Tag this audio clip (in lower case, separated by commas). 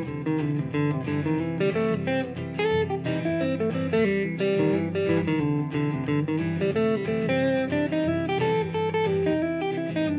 electric guitar, guitar, music, musical instrument, country, plucked string instrument, playing electric guitar, acoustic guitar